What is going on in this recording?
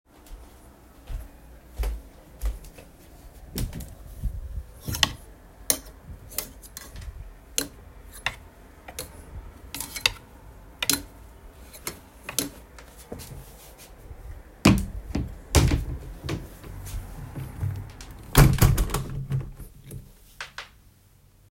I walked to the window and opened it to let air in, then closed it. Afterward, I opened a large wardrobe drawer, picked out clothes, and shut it.